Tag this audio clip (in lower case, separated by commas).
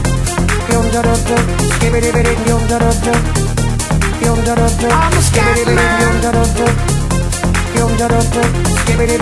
man speaking, music